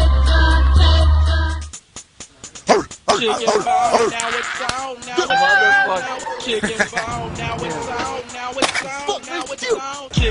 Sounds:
Music

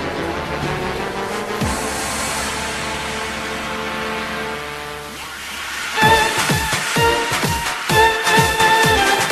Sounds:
Pop music, Music

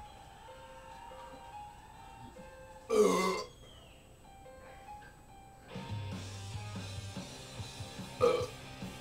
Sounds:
Music, Burping

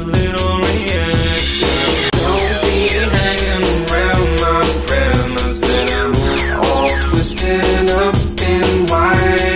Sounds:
Funk, Music

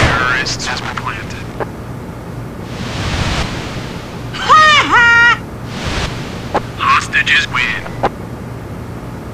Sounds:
Speech

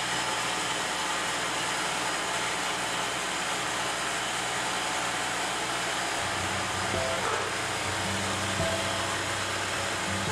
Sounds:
Music, Vehicle, outside, urban or man-made

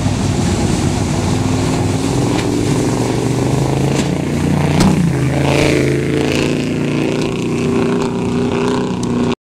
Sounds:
Vehicle, Boat, Motorboat, speedboat acceleration

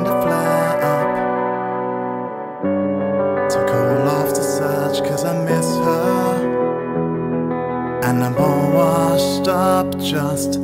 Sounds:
Music

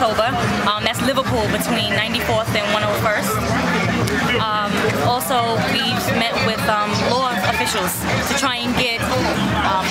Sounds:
Music, Speech

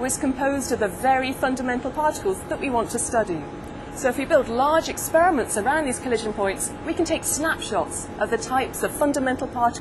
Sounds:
Speech

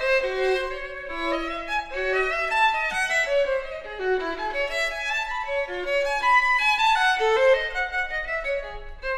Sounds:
Violin, Bowed string instrument

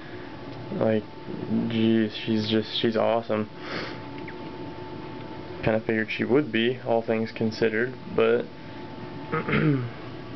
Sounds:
inside a small room, Speech

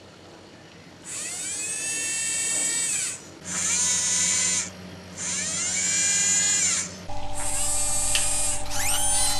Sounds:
outside, urban or man-made

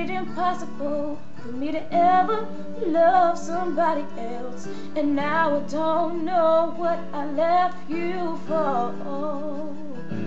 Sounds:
Music, Female singing

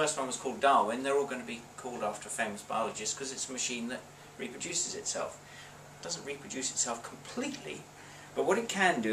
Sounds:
Speech

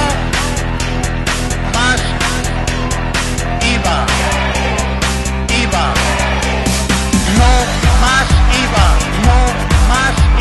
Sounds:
Speech, Music

